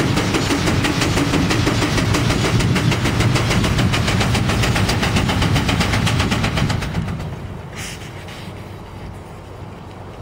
A steam engine is chugging